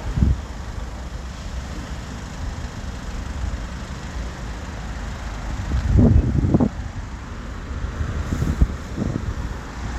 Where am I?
on a street